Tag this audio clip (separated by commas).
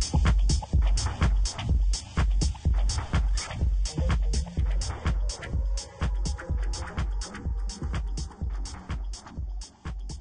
Music